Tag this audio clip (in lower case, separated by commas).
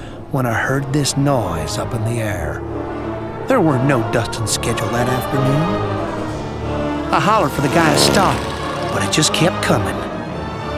speech, music